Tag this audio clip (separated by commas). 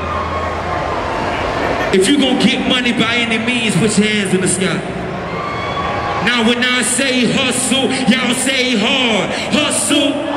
Speech